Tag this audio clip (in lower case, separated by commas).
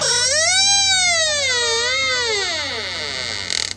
domestic sounds, squeak, door